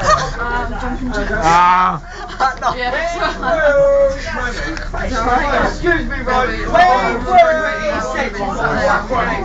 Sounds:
speech

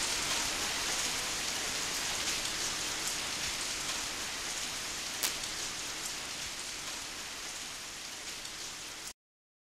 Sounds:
rain on surface
raindrop
rain

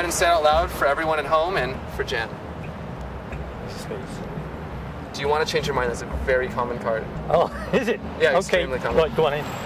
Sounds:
speech

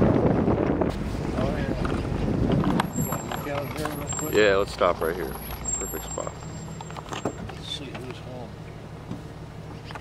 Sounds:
speech

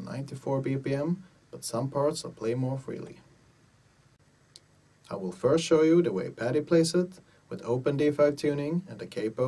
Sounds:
speech

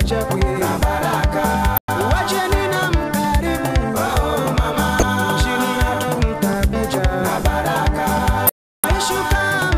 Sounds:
soundtrack music
traditional music
music
dance music

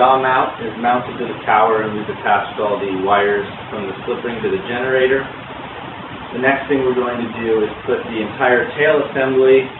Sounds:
speech

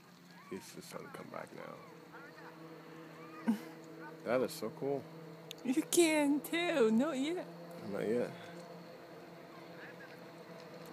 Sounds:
outside, rural or natural
speech

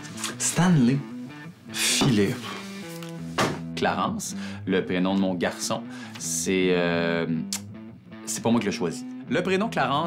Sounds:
music
speech

